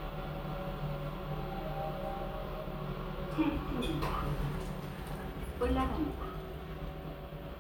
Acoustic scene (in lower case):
elevator